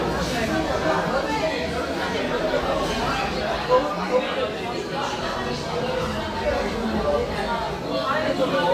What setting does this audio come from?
crowded indoor space